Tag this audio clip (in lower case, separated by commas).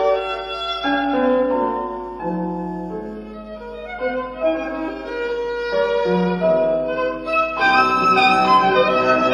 musical instrument, violin, music